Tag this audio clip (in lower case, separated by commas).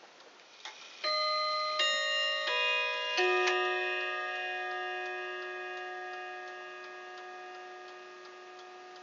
tick-tock, tick